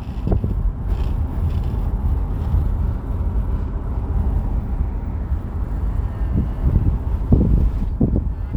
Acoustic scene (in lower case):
car